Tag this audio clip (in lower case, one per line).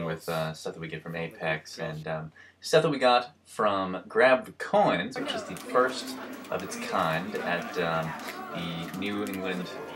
speech